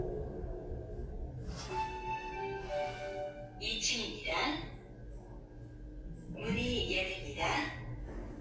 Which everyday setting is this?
elevator